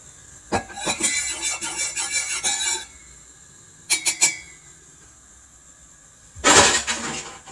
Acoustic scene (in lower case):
kitchen